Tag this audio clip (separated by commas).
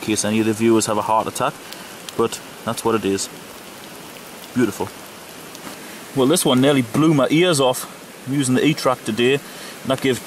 Rain, Speech, outside, rural or natural